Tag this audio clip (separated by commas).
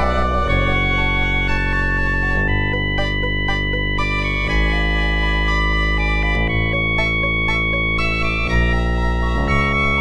Music